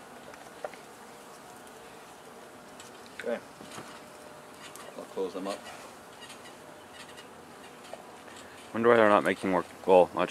An insect making noise in the background of a man speaking